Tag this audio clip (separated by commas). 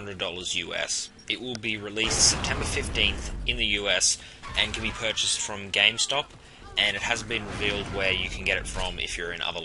Speech